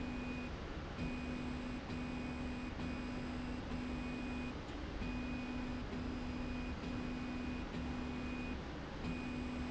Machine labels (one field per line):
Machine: slide rail